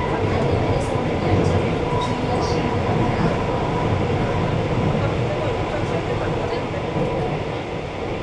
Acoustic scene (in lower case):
subway train